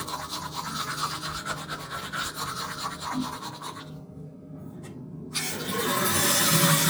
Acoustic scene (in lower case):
restroom